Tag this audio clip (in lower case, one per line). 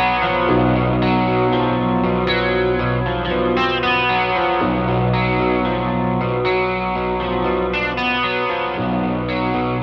music
chorus effect